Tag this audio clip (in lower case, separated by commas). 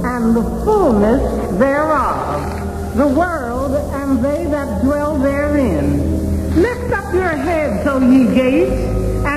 music, speech, radio